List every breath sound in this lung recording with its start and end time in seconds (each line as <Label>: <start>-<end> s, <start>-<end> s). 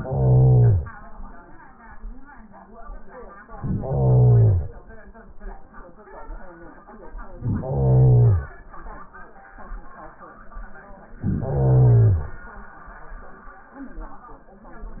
Inhalation: 0.00-0.92 s, 3.50-4.90 s, 7.28-8.68 s, 11.15-12.45 s